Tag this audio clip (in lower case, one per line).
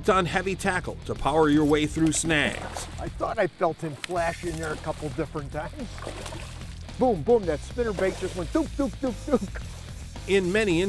music
speech